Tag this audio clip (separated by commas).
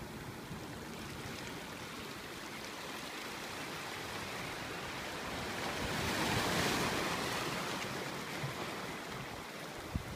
outside, rural or natural, Ocean, ocean burbling